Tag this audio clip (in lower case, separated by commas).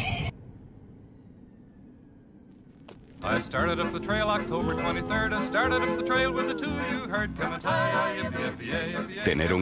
animal, music, horse, speech